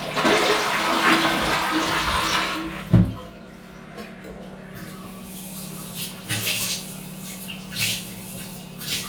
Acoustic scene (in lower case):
restroom